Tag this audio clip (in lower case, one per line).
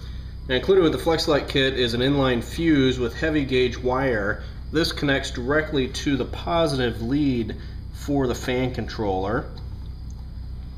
speech